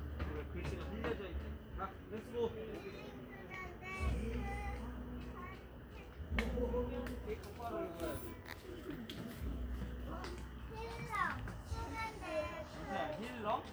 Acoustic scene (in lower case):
park